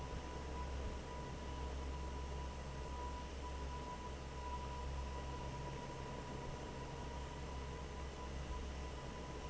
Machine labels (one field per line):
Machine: fan